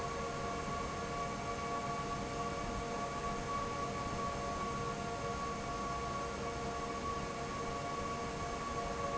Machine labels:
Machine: fan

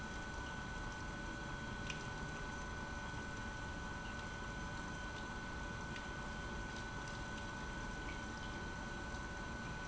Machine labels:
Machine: pump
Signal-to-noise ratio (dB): 6 dB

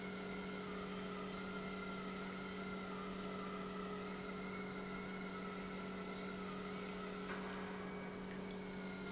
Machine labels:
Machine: pump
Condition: normal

